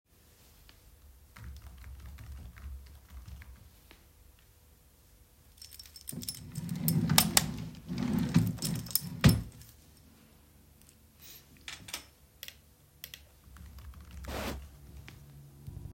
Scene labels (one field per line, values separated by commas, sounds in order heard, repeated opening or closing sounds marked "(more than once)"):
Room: office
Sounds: keyboard typing, keys, wardrobe or drawer, light switch